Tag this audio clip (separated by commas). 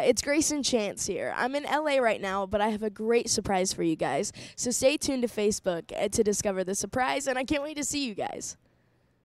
Speech